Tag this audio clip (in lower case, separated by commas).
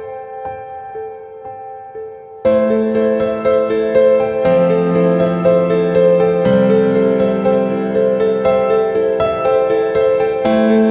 music